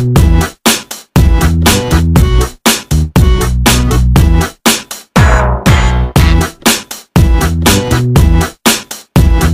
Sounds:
Music

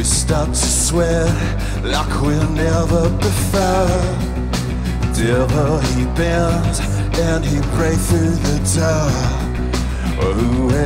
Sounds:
Music

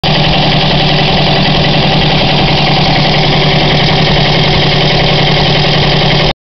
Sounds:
Vehicle

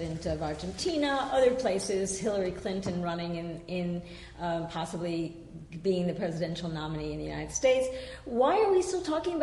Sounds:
woman speaking, Speech

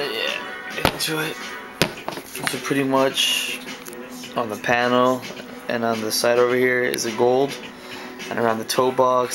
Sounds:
Speech, Music

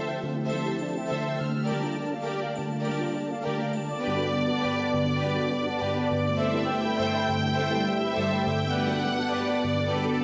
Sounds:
Music

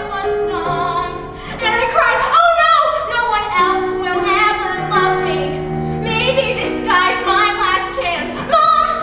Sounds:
Music

